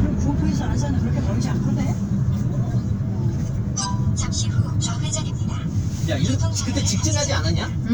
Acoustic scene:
car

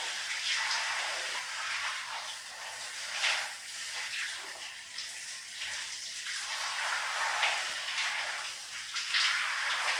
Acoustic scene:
restroom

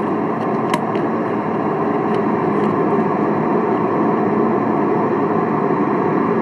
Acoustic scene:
car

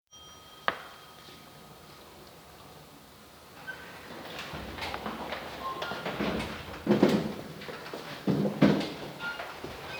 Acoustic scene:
elevator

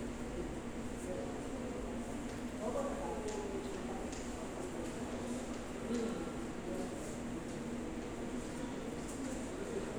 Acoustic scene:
subway station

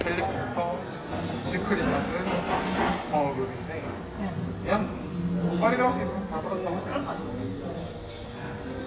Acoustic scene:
cafe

